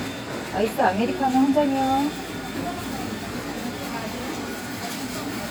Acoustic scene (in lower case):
cafe